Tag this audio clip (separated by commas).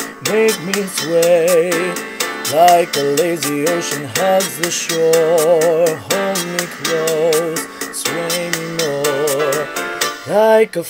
Male singing, Music